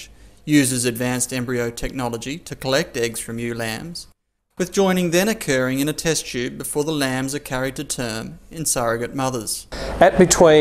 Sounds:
Speech

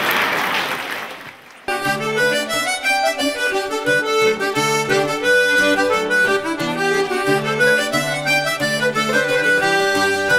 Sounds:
Accordion

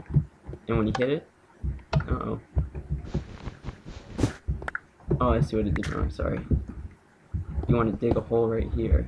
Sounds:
Speech

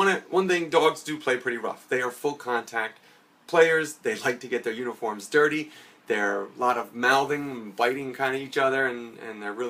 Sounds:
Speech

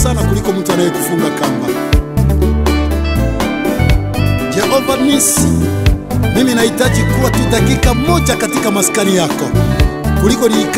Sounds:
Music, Music of Africa

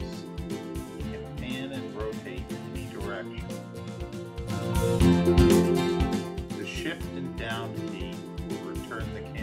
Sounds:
Speech, Music

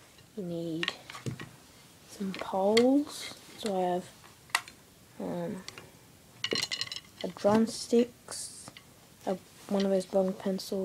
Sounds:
Speech

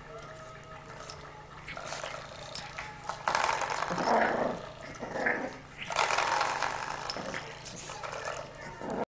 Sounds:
Domestic animals, Animal, Dog

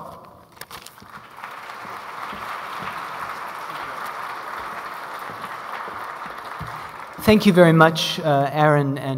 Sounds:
Speech

